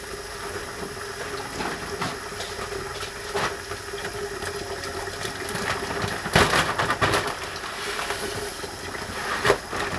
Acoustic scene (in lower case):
kitchen